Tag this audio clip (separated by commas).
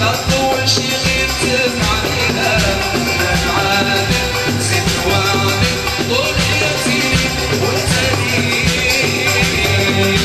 Music